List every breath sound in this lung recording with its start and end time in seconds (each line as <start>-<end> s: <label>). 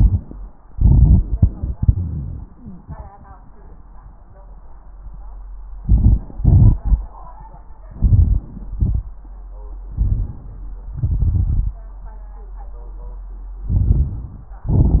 0.00-0.38 s: exhalation
0.00-0.38 s: crackles
0.67-1.72 s: inhalation
0.67-1.72 s: crackles
1.77-2.59 s: exhalation
1.77-2.94 s: crackles
2.02-2.94 s: exhalation
2.51-2.94 s: wheeze
5.81-6.42 s: inhalation
5.81-6.42 s: crackles
6.43-7.04 s: exhalation
6.43-7.04 s: crackles
7.91-8.77 s: inhalation
7.91-8.77 s: crackles
8.80-9.22 s: exhalation
8.80-9.22 s: crackles
9.89-10.86 s: inhalation
9.89-10.86 s: crackles
10.93-11.85 s: crackles
13.67-14.54 s: inhalation
13.67-14.54 s: crackles
14.71-15.00 s: exhalation
14.71-15.00 s: crackles